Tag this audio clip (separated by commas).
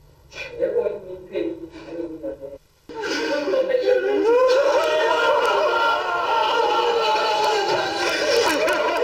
Speech, Snicker